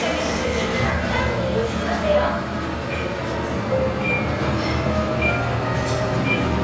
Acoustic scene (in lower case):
elevator